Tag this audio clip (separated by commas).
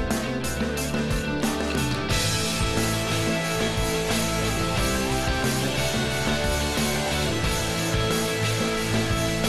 Music